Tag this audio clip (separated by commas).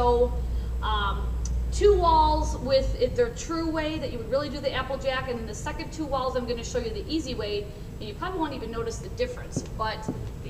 Speech